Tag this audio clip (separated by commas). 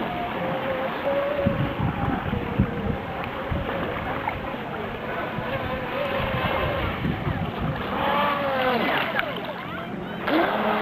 Speech